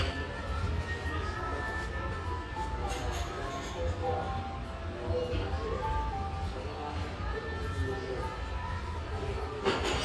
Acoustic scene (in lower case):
restaurant